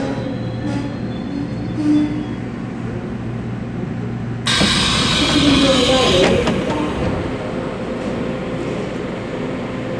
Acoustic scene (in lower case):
subway train